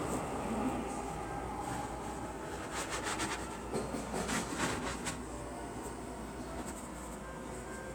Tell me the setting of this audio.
subway station